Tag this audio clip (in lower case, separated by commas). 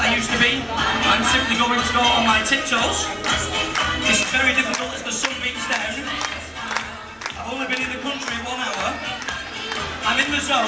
male speech